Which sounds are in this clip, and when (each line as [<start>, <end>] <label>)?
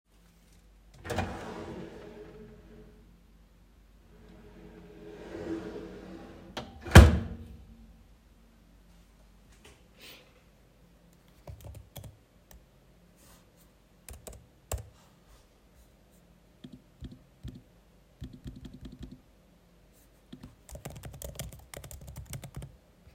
[1.02, 3.36] wardrobe or drawer
[4.75, 7.62] wardrobe or drawer
[11.28, 12.84] keyboard typing
[13.92, 15.28] keyboard typing
[16.53, 19.42] keyboard typing
[20.25, 23.09] keyboard typing